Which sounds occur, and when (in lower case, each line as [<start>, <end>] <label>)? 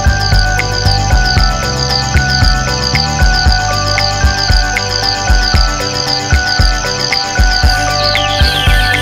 [0.00, 9.01] music